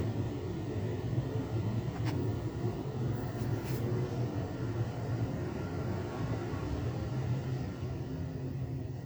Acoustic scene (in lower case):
elevator